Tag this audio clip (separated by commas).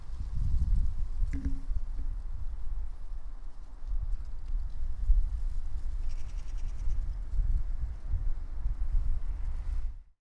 Wind